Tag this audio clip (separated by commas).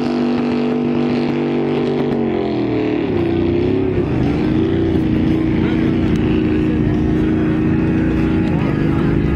Speech, Motorboat, Vehicle